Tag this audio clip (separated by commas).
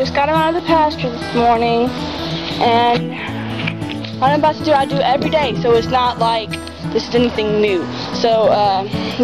Speech, Music